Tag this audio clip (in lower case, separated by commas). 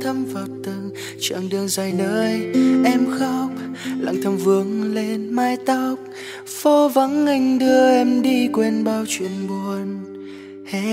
music